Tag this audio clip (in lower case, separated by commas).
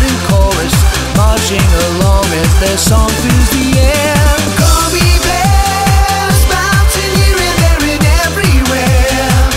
electronic music, music, techno